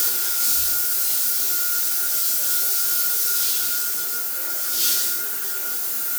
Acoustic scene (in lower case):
restroom